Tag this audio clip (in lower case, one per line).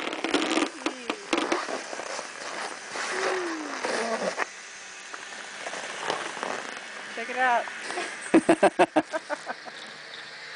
speech